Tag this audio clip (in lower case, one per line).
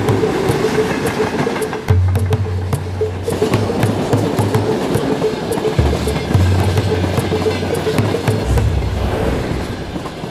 vehicle
train
rail transport